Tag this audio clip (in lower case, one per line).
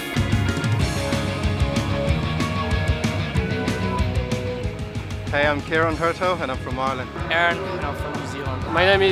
speech
music